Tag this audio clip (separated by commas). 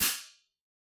Hi-hat, Percussion, Musical instrument, Cymbal, Music